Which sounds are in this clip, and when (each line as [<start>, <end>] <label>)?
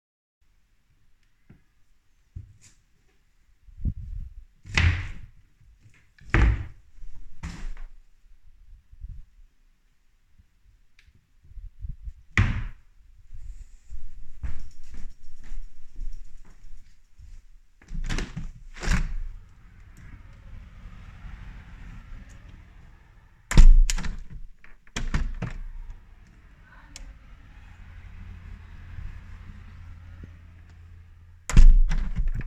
[3.67, 8.12] wardrobe or drawer
[11.64, 13.13] wardrobe or drawer
[13.82, 16.94] footsteps
[17.88, 19.61] window
[23.44, 26.46] window
[31.40, 32.47] window